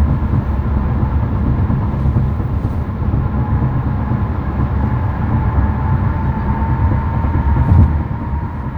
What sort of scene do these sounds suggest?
car